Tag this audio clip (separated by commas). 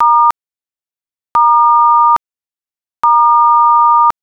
Alarm, Telephone